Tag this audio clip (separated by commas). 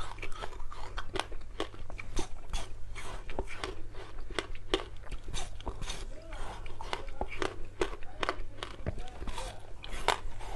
people eating noodle